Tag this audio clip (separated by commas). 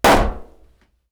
Explosion